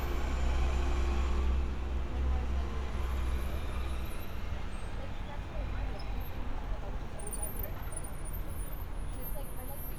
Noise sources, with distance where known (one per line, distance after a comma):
person or small group talking